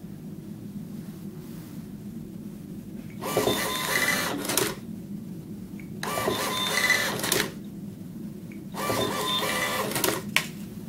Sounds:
printer

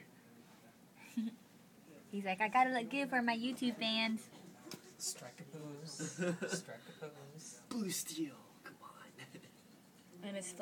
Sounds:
speech

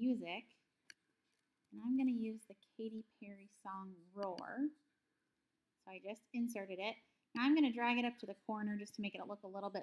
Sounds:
speech

